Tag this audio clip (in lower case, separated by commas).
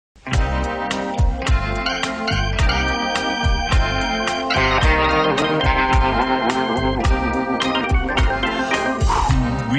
music, speech